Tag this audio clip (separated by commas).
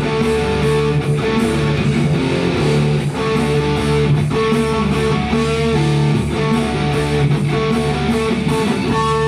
Music, Electric guitar, playing electric guitar, Musical instrument, Strum, Guitar